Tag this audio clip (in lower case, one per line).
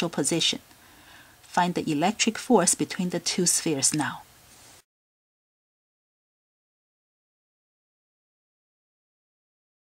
speech